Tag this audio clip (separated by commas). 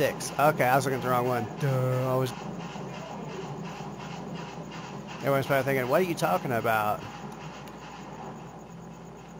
Vehicle